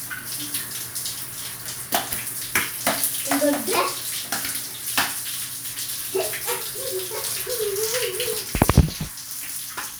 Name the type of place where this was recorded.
restroom